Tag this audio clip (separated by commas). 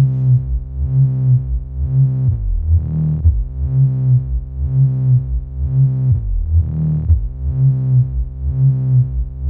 Music